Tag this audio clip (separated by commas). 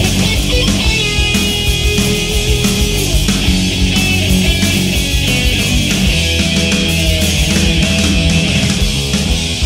Progressive rock, Music